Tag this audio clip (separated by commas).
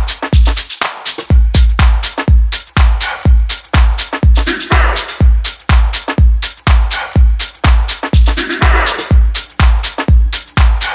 Funk, Music